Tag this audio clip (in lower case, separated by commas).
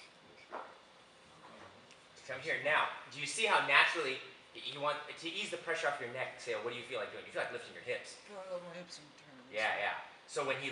speech